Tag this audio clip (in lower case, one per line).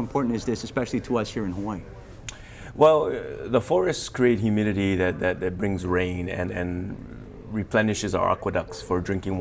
speech